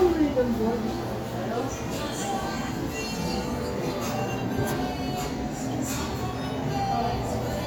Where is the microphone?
in a cafe